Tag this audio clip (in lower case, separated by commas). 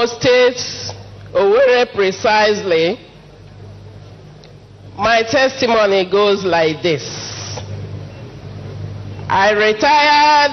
speech